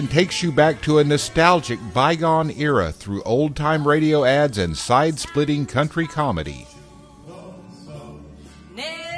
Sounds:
music, speech

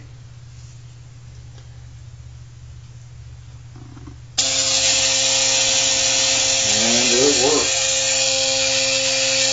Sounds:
speech, toothbrush, electric toothbrush

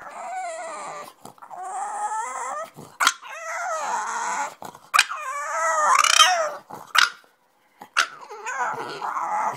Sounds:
animal, pets, dog

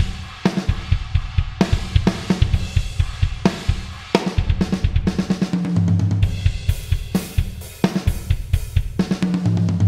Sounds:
hi-hat, cymbal

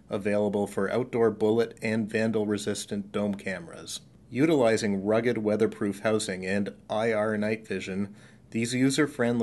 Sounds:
speech

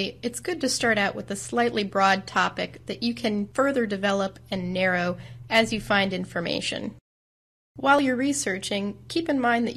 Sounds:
speech

